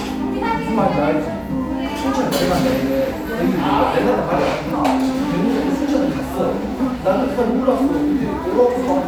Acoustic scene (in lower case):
cafe